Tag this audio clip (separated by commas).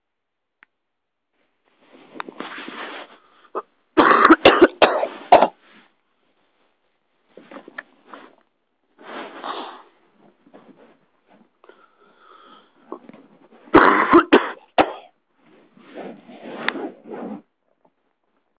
Cough, Respiratory sounds